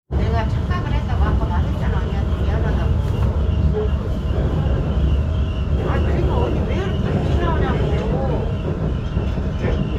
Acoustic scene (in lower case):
subway train